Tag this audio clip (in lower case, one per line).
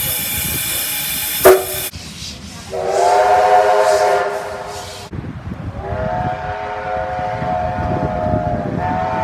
train whistling